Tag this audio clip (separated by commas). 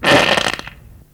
Fart